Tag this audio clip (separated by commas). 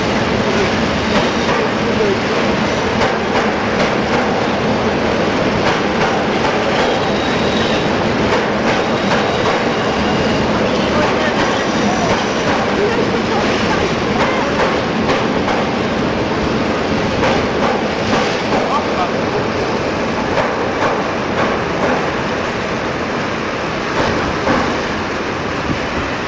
Rail transport, Train, Vehicle